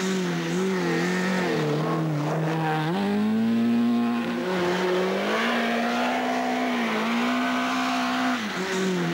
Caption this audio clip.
An engine speeds up